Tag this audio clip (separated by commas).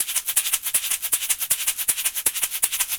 Musical instrument, Music, Rattle (instrument), Percussion